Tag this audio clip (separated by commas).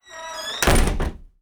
Slam, Wood, Domestic sounds, Door, Squeak